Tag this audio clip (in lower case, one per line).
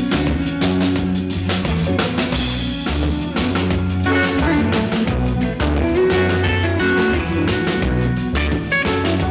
music